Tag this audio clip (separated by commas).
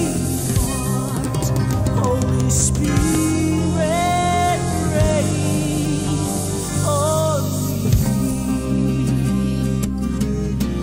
Music